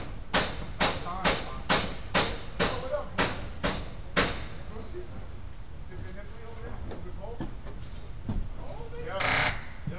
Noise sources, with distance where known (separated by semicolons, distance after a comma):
unidentified impact machinery, near